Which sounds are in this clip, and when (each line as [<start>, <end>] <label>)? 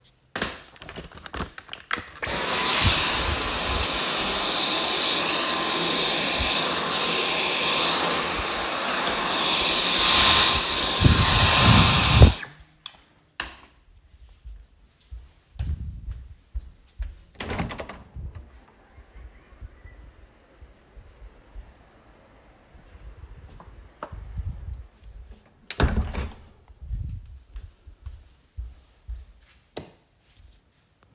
[2.09, 12.78] vacuum cleaner
[14.83, 17.55] footsteps
[17.61, 18.63] window
[25.64, 26.57] window
[27.49, 29.57] footsteps
[30.07, 30.51] light switch